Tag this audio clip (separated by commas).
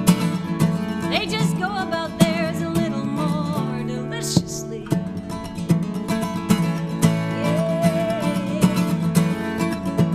Independent music, Music